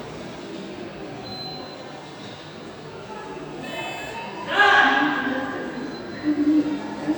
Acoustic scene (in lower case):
subway station